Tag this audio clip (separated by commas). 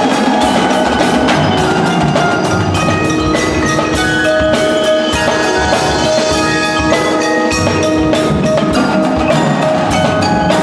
Bass drum, xylophone, Percussion, Mallet percussion, Drum kit, Drum roll, Glockenspiel, Drum, Snare drum